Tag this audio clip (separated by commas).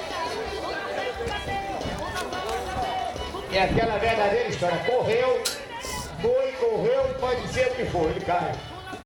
Speech, Music